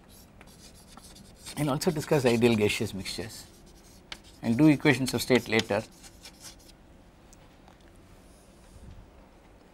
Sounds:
speech

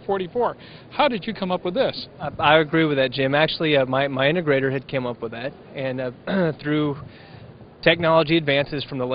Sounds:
speech

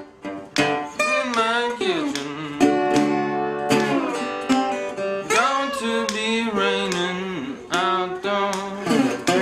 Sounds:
plucked string instrument, guitar, strum, musical instrument, music

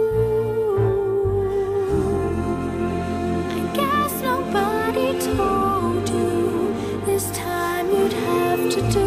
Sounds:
music, choir

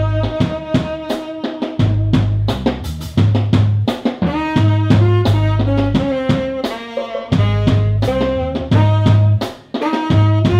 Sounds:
saxophone, woodwind instrument, music, musical instrument, jazz, inside a small room

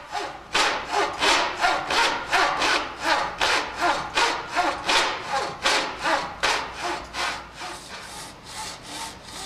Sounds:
wood, sawing

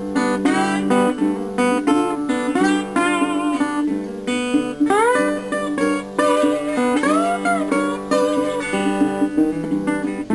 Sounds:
slide guitar

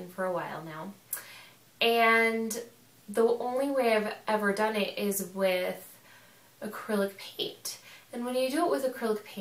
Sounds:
speech

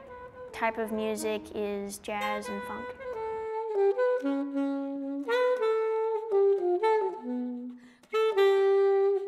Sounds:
speech, saxophone, music

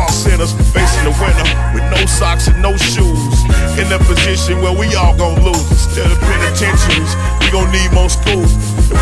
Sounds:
music

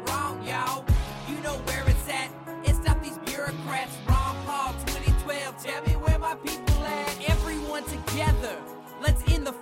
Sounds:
music, exciting music, pop music

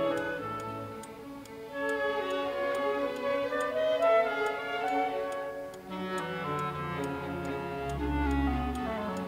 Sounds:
tick-tock, tick, music

